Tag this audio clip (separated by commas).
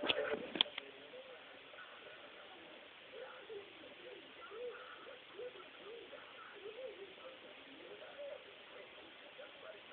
Radio, Speech